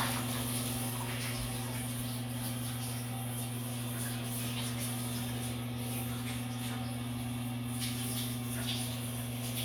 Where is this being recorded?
in a restroom